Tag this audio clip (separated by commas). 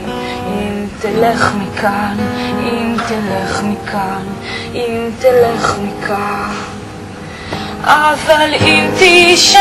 Music